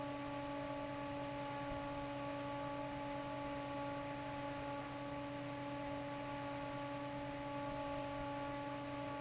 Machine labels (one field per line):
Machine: fan